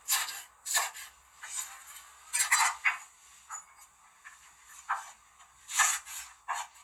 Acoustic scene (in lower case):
kitchen